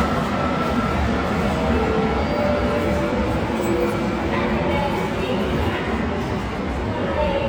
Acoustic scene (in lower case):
subway station